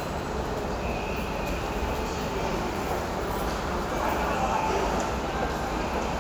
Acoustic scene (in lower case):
subway station